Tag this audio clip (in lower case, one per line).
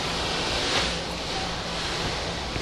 vehicle
water vehicle